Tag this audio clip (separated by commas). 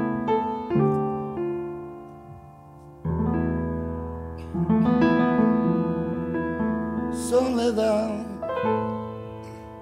Music